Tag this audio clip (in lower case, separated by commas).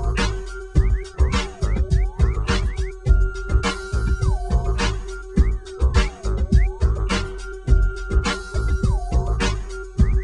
music